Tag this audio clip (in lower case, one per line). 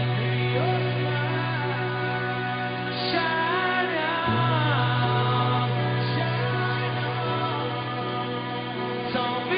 music